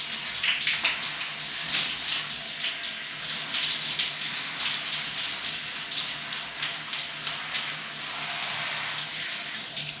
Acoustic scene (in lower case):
restroom